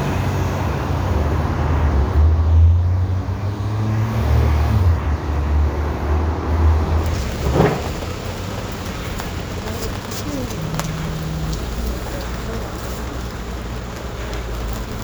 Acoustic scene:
street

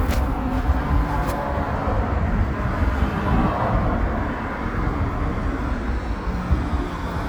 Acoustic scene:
street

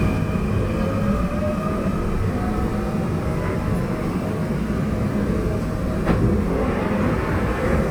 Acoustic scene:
subway train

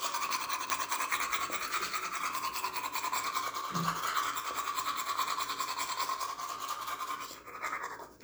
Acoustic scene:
restroom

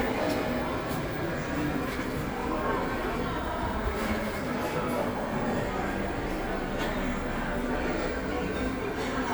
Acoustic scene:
cafe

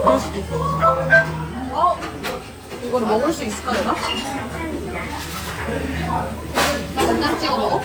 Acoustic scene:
restaurant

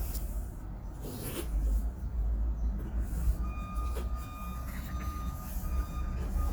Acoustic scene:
residential area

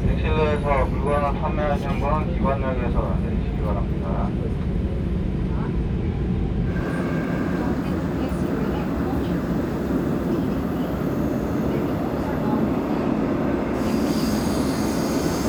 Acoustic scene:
subway train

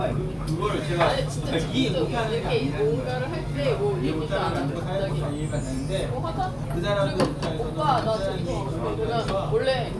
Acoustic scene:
crowded indoor space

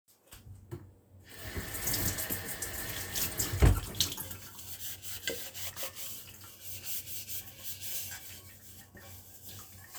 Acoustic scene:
kitchen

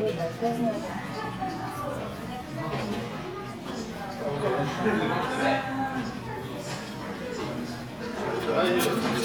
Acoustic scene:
crowded indoor space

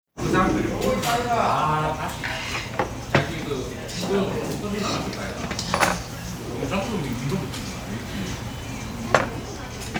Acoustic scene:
restaurant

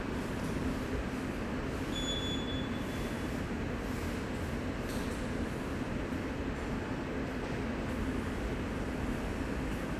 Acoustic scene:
subway station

